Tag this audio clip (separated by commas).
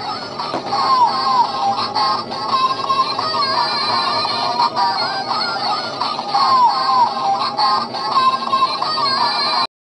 Music